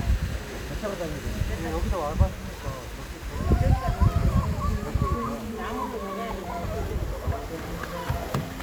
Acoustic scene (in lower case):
park